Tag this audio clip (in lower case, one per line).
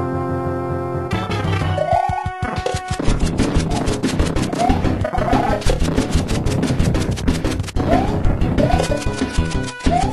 music